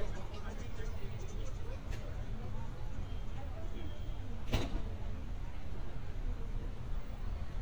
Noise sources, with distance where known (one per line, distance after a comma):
person or small group talking